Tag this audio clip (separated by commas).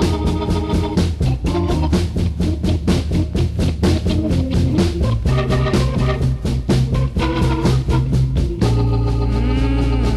Music